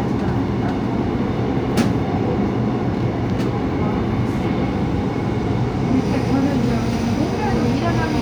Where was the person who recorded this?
on a subway train